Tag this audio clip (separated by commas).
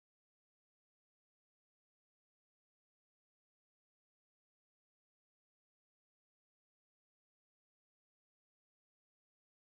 Silence